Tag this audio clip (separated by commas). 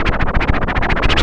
Scratching (performance technique), Music, Musical instrument